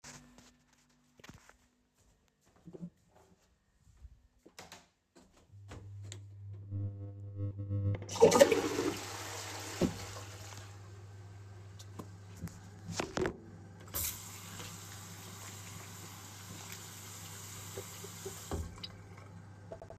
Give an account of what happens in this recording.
I went to the bathroom and turned on the light switch. I flushed the toilet and then placed my phone on the sink. After that, I turned on the water to wash my hands.